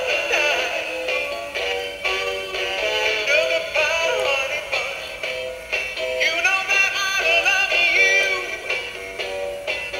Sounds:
music, male singing

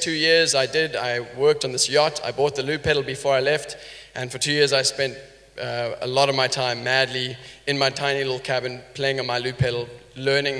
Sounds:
speech

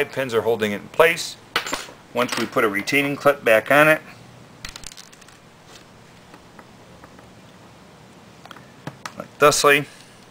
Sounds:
inside a small room, speech

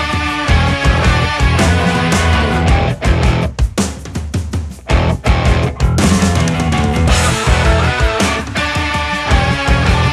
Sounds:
music, happy music, ska, soul music

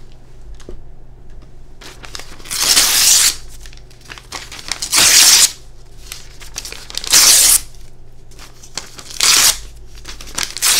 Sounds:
ripping paper

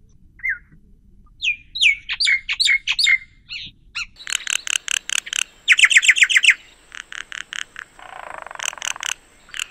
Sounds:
mynah bird singing

